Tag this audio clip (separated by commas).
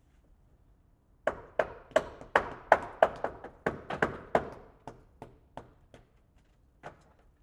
Hammer, Tools